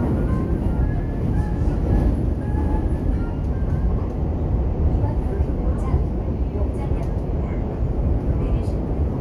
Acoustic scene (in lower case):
subway train